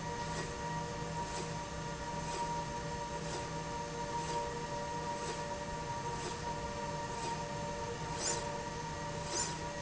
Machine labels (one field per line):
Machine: slide rail